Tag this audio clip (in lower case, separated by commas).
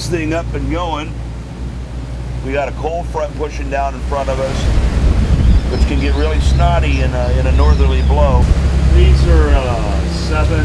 ocean, vehicle, speech, water vehicle